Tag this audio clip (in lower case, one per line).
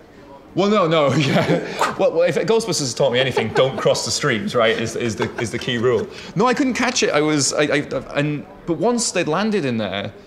speech